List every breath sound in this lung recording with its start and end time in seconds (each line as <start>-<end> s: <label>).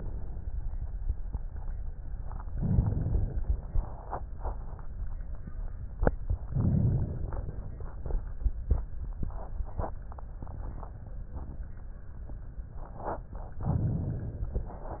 2.34-4.01 s: inhalation
6.37-7.71 s: inhalation
13.49-15.00 s: inhalation